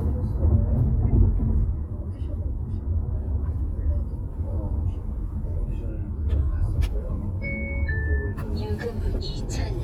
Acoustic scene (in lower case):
car